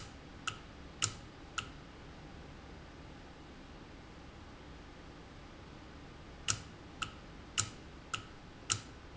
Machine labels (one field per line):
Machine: valve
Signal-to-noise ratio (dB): 6 dB